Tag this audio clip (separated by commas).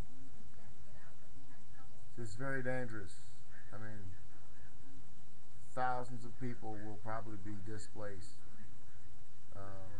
Speech